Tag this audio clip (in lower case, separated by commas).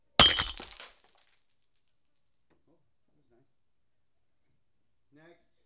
glass, shatter